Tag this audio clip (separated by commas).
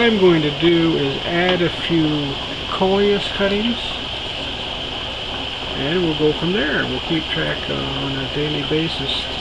Speech